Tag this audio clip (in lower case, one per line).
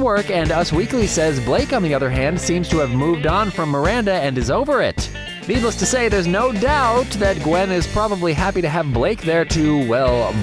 music
speech